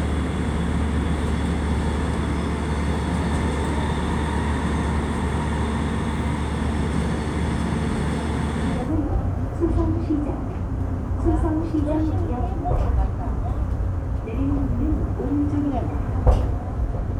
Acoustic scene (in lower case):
subway train